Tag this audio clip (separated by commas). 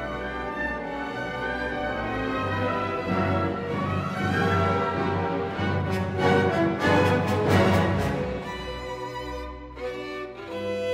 Violin, Music, Musical instrument